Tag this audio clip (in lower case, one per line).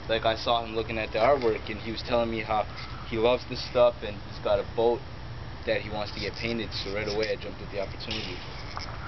speech